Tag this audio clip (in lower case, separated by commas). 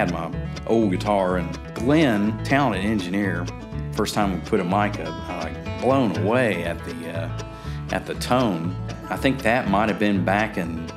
musical instrument, speech, guitar, plucked string instrument, music